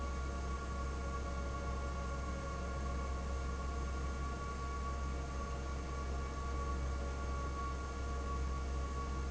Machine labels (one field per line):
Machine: fan